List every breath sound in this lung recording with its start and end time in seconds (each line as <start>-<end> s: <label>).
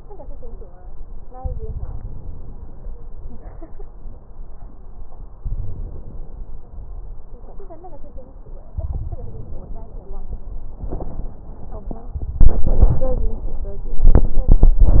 1.39-2.52 s: inhalation
1.39-2.52 s: wheeze
5.37-5.99 s: inhalation
5.37-5.99 s: wheeze
8.77-9.64 s: inhalation